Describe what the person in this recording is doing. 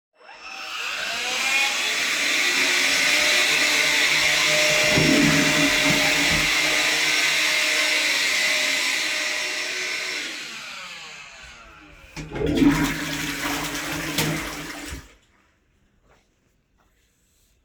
the vaccum cleaner is running. i flush the toilet, get outside to turn off the vacuum. then i flush again.